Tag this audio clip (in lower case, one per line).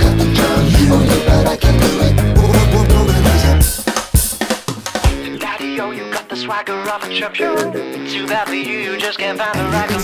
music
singing